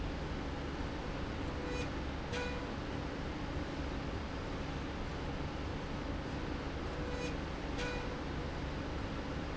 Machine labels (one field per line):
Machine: slide rail